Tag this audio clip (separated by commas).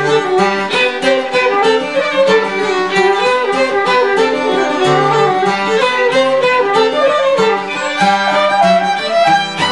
Music, Traditional music